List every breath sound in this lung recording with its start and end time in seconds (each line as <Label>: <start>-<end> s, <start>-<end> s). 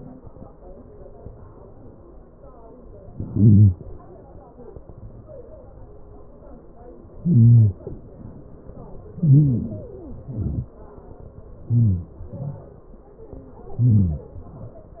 Inhalation: 3.00-3.65 s, 7.04-7.71 s, 8.92-9.62 s, 11.75-12.11 s, 13.38-13.98 s
Exhalation: 3.68-4.12 s, 7.67-8.12 s, 9.62-10.15 s, 12.11-12.50 s, 13.97-14.57 s
Wheeze: 8.94-9.64 s, 9.68-10.19 s
Stridor: 3.00-3.65 s, 3.68-4.12 s, 7.67-8.12 s, 8.94-9.64 s, 9.68-10.19 s, 11.78-12.05 s, 12.11-12.50 s, 13.26-13.87 s, 13.97-14.57 s